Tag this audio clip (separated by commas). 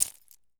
Keys jangling, Domestic sounds